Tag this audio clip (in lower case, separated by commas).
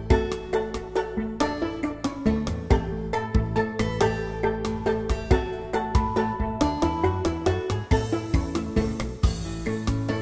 music